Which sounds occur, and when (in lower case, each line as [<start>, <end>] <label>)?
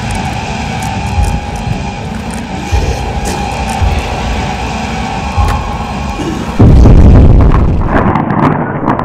[0.00, 9.04] music
[0.74, 1.27] sound effect
[1.47, 1.70] sound effect
[2.26, 2.46] sound effect
[2.64, 2.95] sound effect
[3.19, 3.41] sound effect
[3.63, 4.12] sound effect
[5.35, 5.64] sound effect
[6.11, 9.04] sound effect